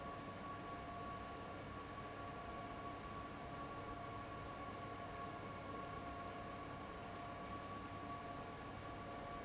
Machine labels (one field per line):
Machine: fan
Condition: abnormal